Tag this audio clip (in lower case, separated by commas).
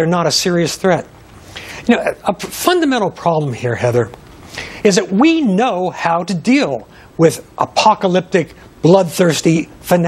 speech